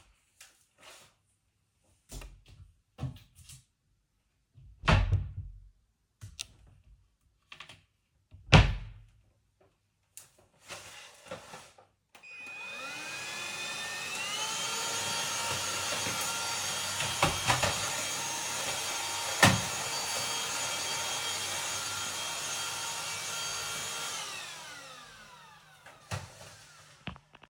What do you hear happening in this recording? I opened and closed one side of the wardrobe, then the other, took out my vacuum cleaner and started vacuuming around the room, occasionally bumping into furniture. Then I turned it off.